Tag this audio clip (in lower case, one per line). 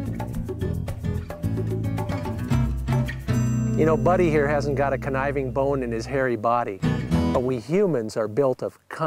speech
music